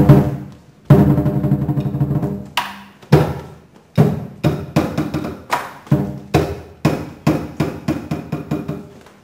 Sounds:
inside a large room or hall, Music

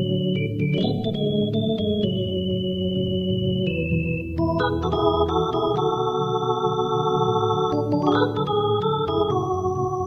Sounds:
playing electronic organ, Organ, Electronic organ

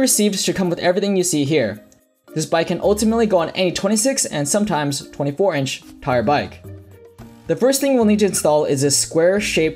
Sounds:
Music, Speech

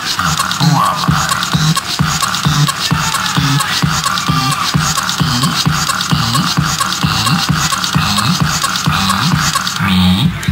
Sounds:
Funny music, Music

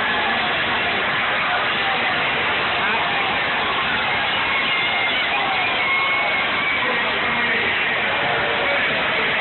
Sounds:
Speech

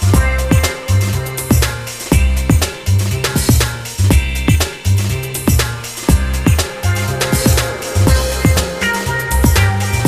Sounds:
Music

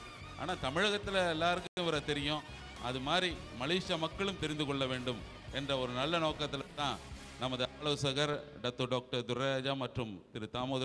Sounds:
man speaking, Music, monologue, Speech

